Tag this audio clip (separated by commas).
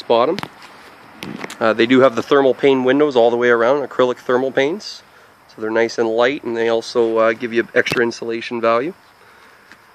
Speech